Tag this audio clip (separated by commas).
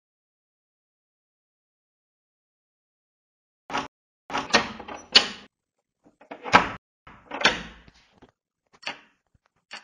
inside a small room